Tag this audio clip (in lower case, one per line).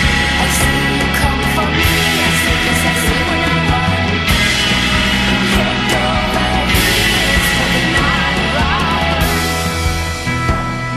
punk rock
music